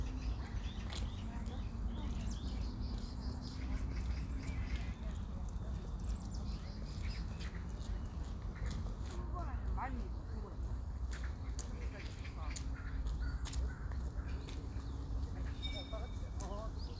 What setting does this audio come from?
park